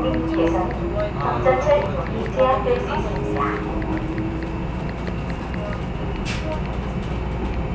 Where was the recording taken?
on a subway train